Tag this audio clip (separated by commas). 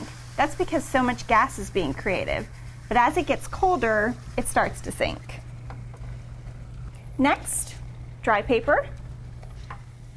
Speech